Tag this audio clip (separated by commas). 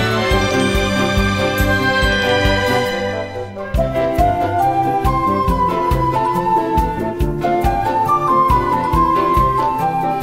Music